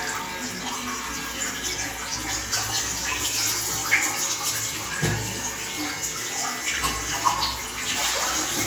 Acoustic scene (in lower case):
restroom